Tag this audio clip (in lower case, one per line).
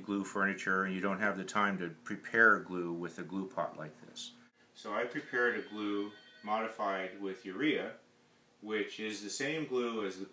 speech